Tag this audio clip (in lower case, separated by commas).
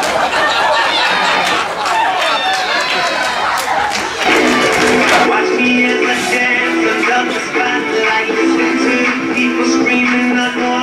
music